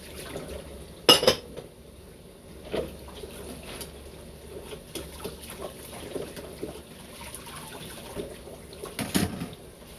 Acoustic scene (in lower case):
kitchen